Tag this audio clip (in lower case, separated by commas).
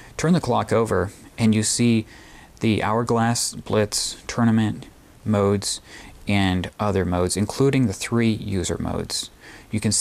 speech